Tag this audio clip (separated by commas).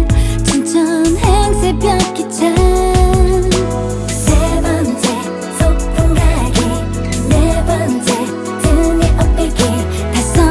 Music